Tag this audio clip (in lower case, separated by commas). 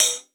percussion, hi-hat, music, cymbal, musical instrument